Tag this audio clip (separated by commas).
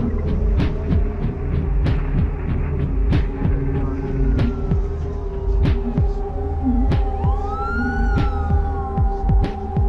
Music